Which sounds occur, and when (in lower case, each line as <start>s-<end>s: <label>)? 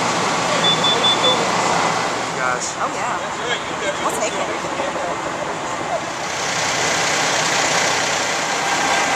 0.0s-9.1s: heavy engine (low frequency)
0.6s-1.4s: fire alarm
2.3s-5.2s: conversation
2.3s-2.7s: man speaking
2.8s-3.2s: female speech
3.3s-4.6s: man speaking
4.0s-4.5s: female speech
4.8s-5.2s: man speaking